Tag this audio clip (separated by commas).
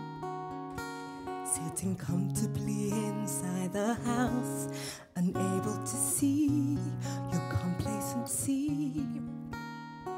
Music